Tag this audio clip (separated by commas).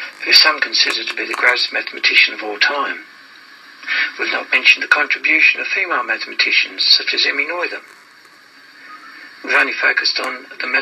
Speech